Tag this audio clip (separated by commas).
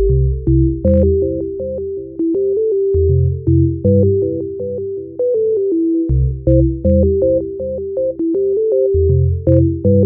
Music